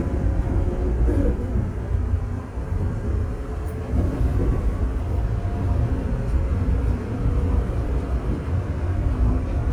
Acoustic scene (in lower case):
subway train